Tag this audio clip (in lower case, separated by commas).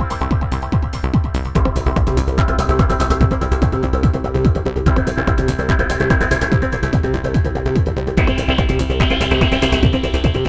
music